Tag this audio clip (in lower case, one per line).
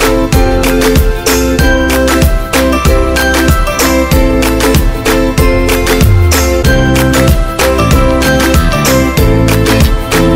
music